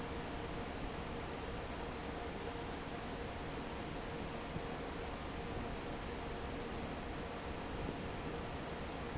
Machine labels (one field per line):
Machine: fan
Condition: normal